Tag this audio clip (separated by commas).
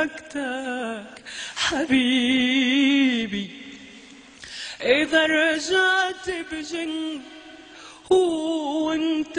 Female singing